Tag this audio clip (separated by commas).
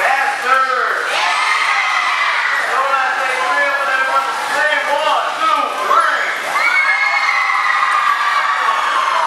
Speech